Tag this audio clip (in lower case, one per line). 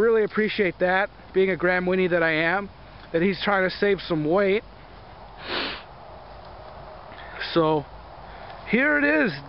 outside, rural or natural
speech